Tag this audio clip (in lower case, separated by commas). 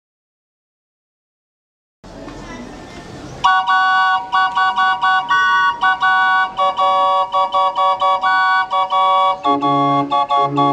organ, silence, music, outside, urban or man-made, musical instrument, speech